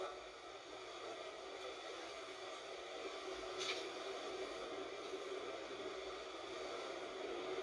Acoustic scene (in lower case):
bus